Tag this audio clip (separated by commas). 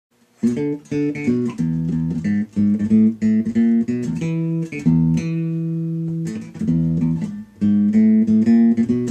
Guitar, Plucked string instrument, Music, Musical instrument